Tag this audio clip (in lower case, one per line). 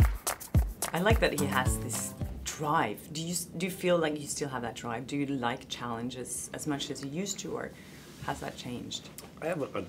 speech
music
inside a large room or hall